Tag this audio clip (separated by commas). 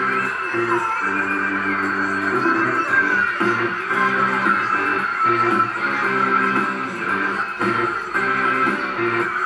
Music, Synthetic singing